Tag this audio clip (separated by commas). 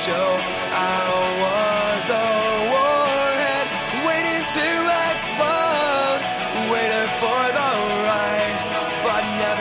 Exciting music, Music